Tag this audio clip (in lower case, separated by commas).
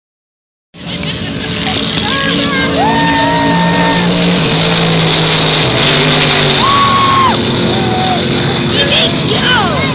vehicle, speech, truck